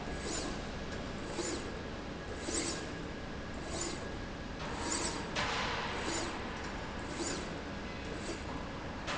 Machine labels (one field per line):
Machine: slide rail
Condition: abnormal